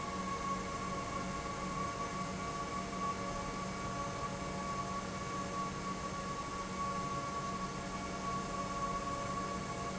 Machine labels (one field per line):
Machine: pump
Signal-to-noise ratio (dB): -6 dB